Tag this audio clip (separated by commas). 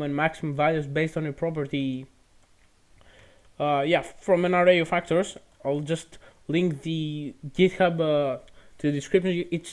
Speech